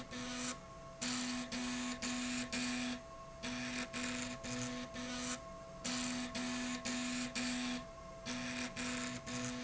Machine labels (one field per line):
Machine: slide rail